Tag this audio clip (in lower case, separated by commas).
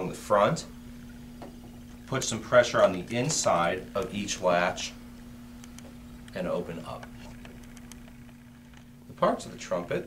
speech